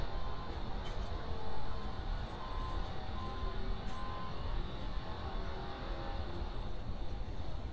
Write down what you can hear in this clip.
unidentified powered saw, reverse beeper